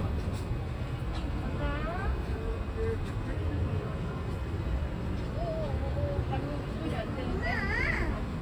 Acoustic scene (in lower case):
residential area